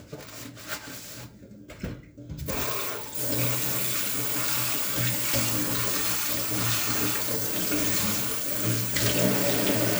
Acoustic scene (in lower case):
kitchen